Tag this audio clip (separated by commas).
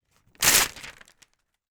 Tearing